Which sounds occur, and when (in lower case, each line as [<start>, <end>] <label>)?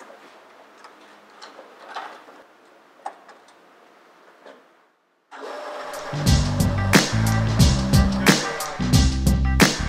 [0.00, 9.85] mechanisms
[0.06, 0.32] generic impact sounds
[0.76, 0.99] generic impact sounds
[1.40, 2.36] generic impact sounds
[3.04, 3.67] generic impact sounds
[4.40, 4.74] generic impact sounds
[6.04, 9.85] music
[7.11, 7.62] man speaking
[7.82, 8.73] man speaking